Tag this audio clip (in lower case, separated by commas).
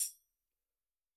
percussion, tambourine, music, musical instrument